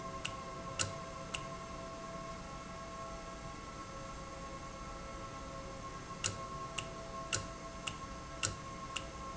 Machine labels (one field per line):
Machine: valve